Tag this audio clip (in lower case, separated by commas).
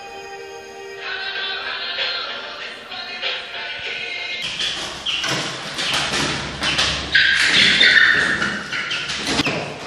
chicken, music, bird